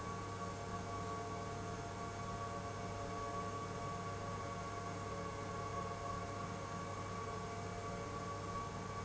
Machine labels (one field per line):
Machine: pump